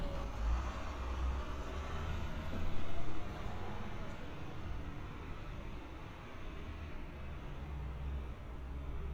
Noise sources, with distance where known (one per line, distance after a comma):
large-sounding engine, far